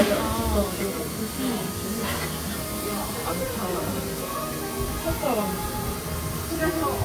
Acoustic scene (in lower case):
restaurant